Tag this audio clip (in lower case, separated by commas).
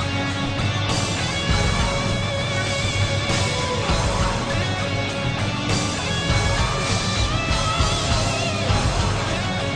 music